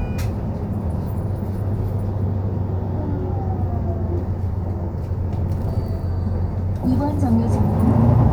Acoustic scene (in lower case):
bus